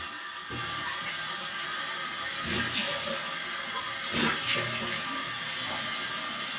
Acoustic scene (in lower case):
restroom